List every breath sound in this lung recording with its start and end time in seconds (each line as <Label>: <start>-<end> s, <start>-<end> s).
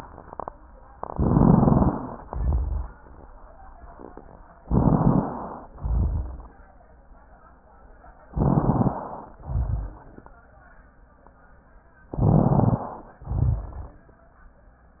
Inhalation: 1.01-2.17 s, 4.59-5.66 s, 8.35-9.41 s, 12.09-13.23 s
Exhalation: 2.24-2.98 s, 5.79-6.53 s, 9.45-10.19 s, 13.26-14.00 s
Rhonchi: 2.24-2.98 s, 5.79-6.53 s, 9.45-10.19 s, 13.26-14.00 s
Crackles: 1.01-2.17 s, 4.59-5.66 s, 8.35-9.41 s, 12.09-13.23 s